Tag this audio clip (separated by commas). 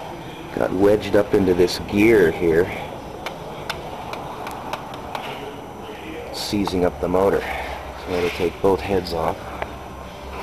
Speech